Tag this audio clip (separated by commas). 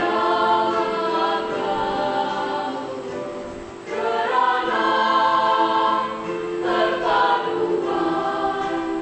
Music, Singing, A capella, Choir